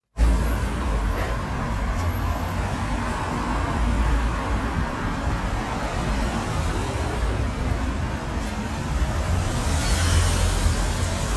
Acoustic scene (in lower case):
street